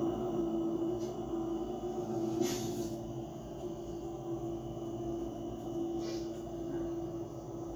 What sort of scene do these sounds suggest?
bus